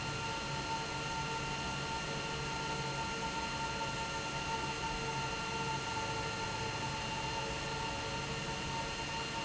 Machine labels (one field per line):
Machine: pump